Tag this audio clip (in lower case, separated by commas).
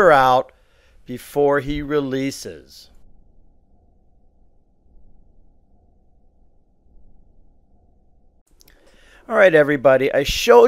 speech